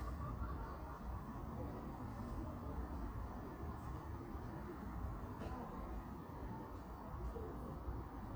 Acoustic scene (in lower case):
park